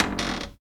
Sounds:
home sounds
door
cupboard open or close

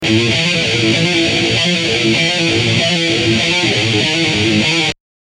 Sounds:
plucked string instrument
music
musical instrument
guitar

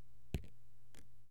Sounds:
water
drip
raindrop
liquid
rain

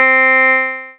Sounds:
keyboard (musical)
piano
music
musical instrument

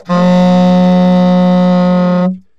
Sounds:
woodwind instrument
music
musical instrument

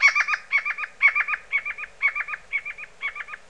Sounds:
bird
bird call
wild animals
animal

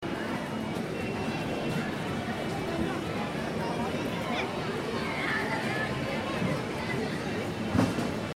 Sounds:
crowd
human group actions

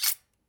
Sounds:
cutlery
domestic sounds

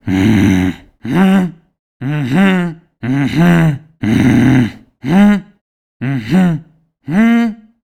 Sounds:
human voice

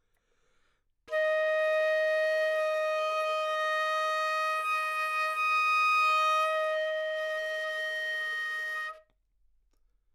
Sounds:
music
musical instrument
wind instrument

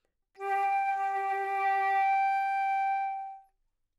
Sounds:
wind instrument
music
musical instrument

